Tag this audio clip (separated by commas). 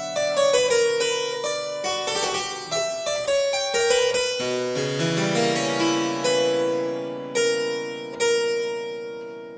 Music, Harpsichord